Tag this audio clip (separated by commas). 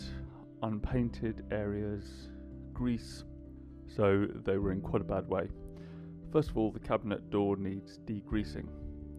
Speech